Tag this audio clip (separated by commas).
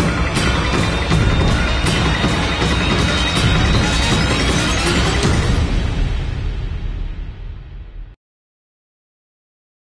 Music